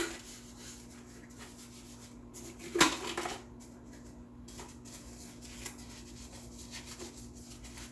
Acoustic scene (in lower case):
kitchen